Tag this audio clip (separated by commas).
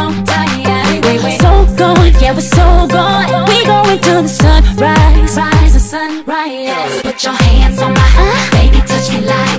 Rhythm and blues, Music